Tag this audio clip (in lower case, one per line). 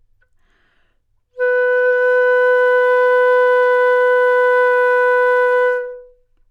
music
woodwind instrument
musical instrument